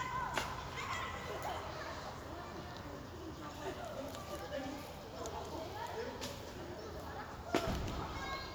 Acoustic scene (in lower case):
park